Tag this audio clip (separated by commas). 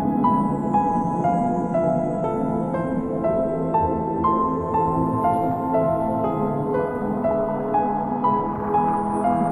New-age music, Music